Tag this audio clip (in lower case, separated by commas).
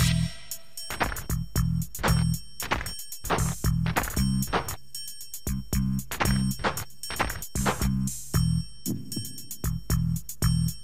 music